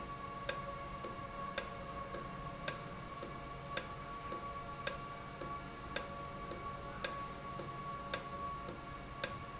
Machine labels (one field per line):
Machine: valve